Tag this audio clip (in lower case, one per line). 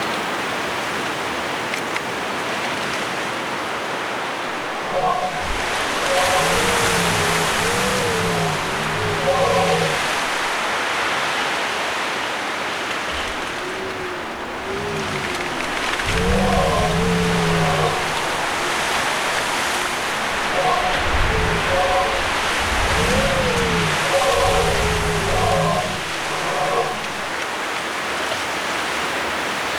wind